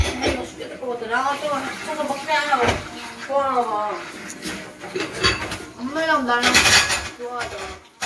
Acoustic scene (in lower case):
kitchen